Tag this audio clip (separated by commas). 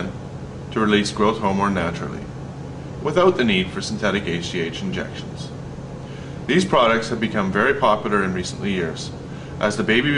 Speech